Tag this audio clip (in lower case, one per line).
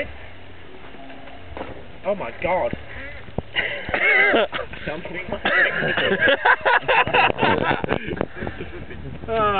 speech